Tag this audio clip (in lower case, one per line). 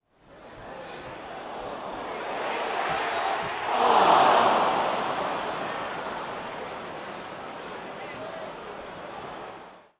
human group actions
cheering